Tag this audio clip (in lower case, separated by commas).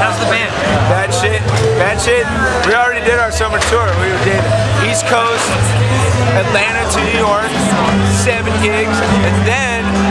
music, speech